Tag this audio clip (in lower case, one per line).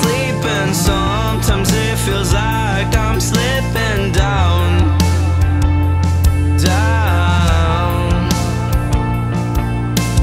music